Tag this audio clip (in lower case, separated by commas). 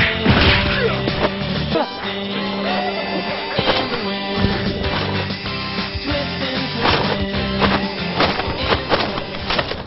music, speech